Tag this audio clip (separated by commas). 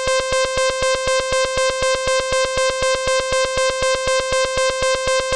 Alarm